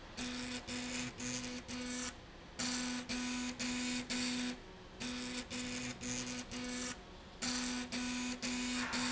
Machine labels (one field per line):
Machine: slide rail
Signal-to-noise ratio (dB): 6 dB